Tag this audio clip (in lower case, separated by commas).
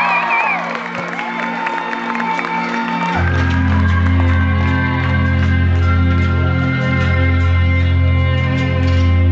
musical instrument, violin, music